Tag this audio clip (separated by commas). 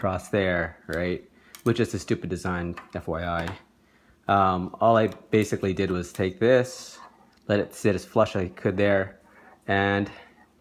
Speech